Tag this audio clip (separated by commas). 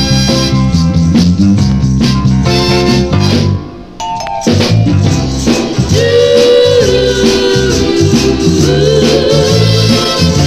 Christmas music, Christian music, Music